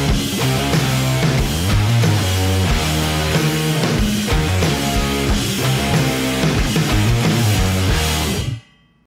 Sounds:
Music, Exciting music

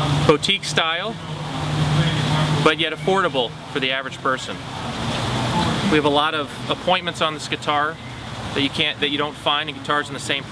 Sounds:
Speech

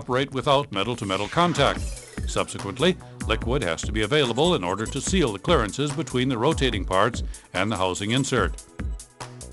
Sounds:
Speech, Music

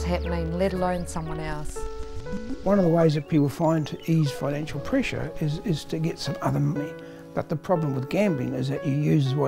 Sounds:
Speech, Music

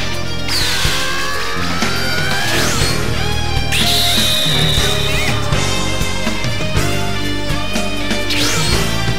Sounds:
Music

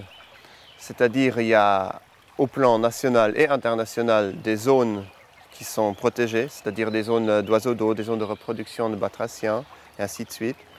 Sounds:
Speech

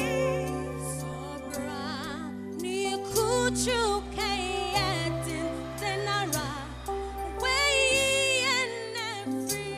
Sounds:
Music, Female singing

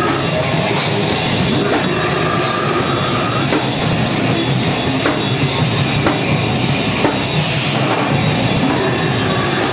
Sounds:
Music, Heavy metal

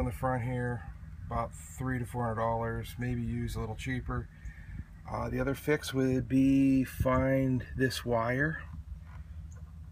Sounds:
Speech

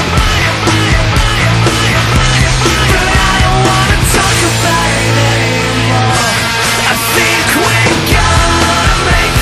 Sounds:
Music

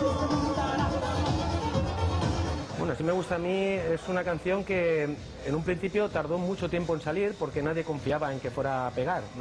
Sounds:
Techno, Music, Speech

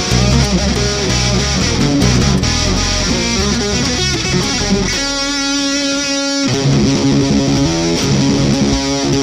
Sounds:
Bass guitar, Guitar, Bowed string instrument, Musical instrument, Heavy metal, Music

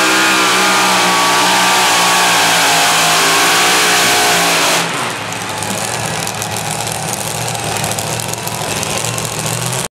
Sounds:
Vehicle

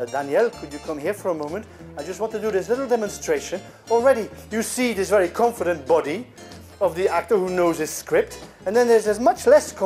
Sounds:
Music, Speech

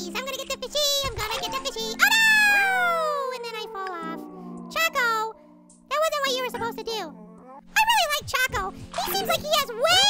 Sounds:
Music, Speech

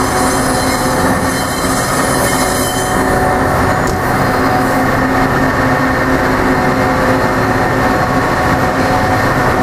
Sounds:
Vehicle

